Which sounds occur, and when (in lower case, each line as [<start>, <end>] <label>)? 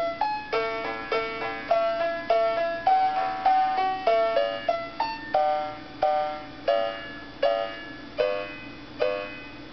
[0.00, 9.72] mechanisms
[0.00, 9.72] music